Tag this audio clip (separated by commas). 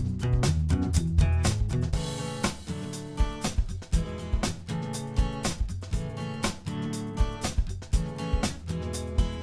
Music